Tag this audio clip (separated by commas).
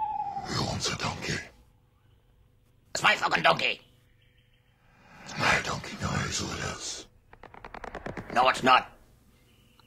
inside a small room, Speech